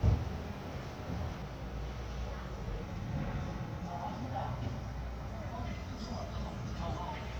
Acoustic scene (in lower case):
residential area